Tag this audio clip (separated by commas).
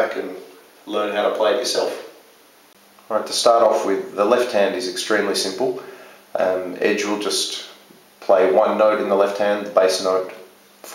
Speech